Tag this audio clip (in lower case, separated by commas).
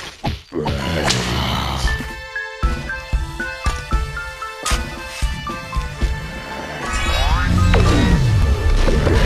speech, music